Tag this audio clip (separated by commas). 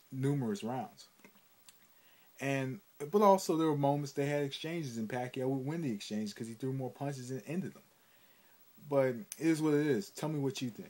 Speech, inside a small room